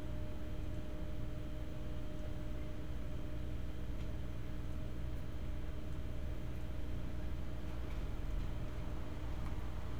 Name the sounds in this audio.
medium-sounding engine